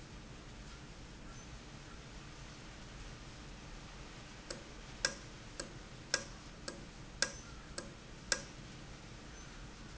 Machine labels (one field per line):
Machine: valve